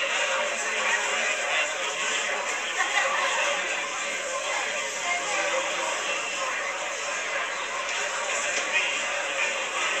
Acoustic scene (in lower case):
crowded indoor space